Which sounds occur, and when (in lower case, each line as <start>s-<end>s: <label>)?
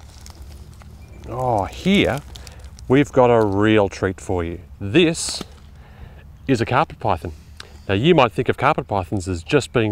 0.0s-9.9s: wind
0.0s-0.4s: surface contact
0.2s-0.8s: rustle
0.9s-1.2s: bird song
1.0s-1.6s: rustle
1.2s-2.2s: male speech
1.7s-2.1s: rustle
2.3s-2.8s: rustle
2.3s-2.7s: breathing
2.8s-4.5s: male speech
3.3s-3.6s: generic impact sounds
4.8s-5.4s: male speech
5.2s-5.5s: generic impact sounds
5.7s-6.2s: breathing
6.3s-6.4s: bird song
6.5s-7.3s: male speech
7.2s-7.9s: breathing
7.5s-7.7s: tick
7.9s-9.9s: male speech
8.9s-9.7s: bird song